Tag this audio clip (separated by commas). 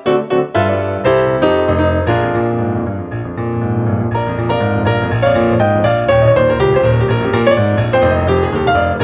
Music